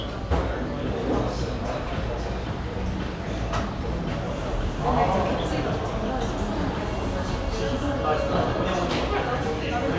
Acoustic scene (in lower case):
cafe